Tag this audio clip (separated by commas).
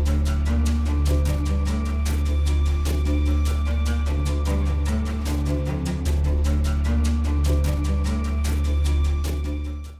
Music